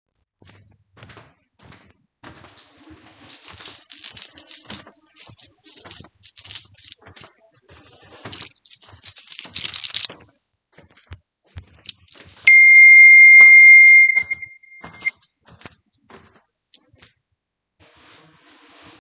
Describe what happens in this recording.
I walked across the hallway while holding and jiggling my keys. While walking, I received a phone call and the phone started ringing. I continued walking while the keys were still moving in my hand.